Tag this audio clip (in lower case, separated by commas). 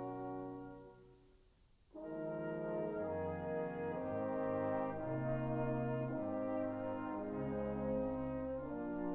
music, orchestra